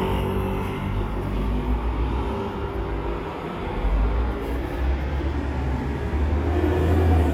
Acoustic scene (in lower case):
street